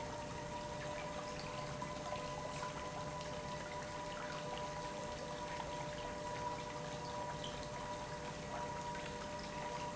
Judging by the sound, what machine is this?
pump